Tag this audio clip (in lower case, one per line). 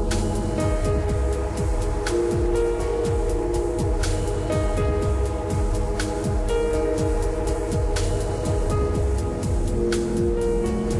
music